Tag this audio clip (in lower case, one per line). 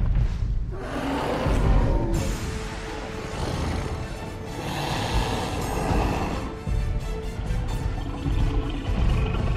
dinosaurs bellowing